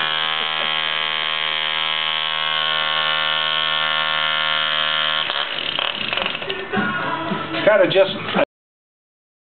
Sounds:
speech, vroom

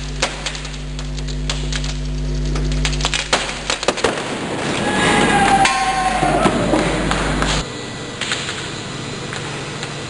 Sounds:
inside a large room or hall

